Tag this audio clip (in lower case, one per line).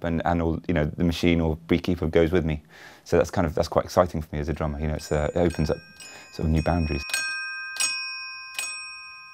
musical instrument
speech
music